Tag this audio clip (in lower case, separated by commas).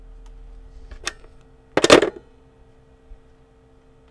alarm, telephone